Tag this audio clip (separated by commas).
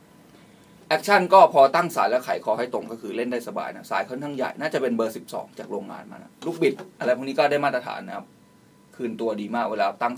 Speech